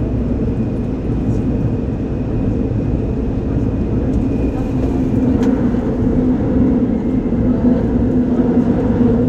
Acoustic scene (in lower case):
subway train